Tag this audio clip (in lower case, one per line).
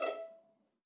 musical instrument
music
bowed string instrument